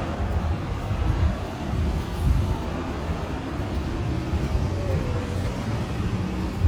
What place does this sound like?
residential area